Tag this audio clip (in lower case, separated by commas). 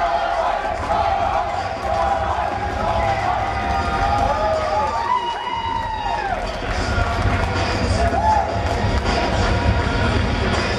inside a large room or hall, speech, music, inside a public space